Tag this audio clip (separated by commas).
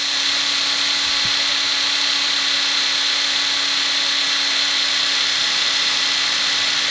Tools